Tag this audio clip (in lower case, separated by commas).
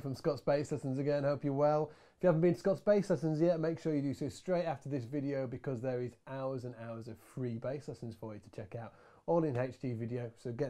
speech